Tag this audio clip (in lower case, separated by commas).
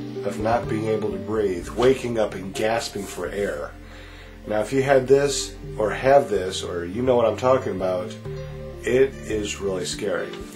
speech, music